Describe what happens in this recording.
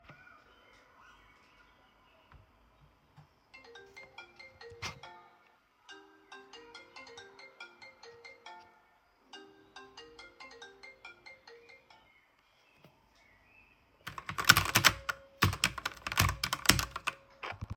My phone rang so i turned off the sound and stared typing on my keyboard.